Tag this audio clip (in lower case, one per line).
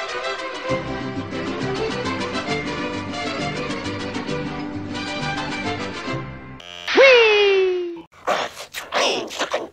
music